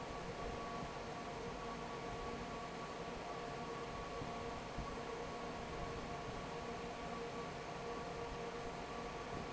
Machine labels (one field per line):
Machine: fan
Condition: normal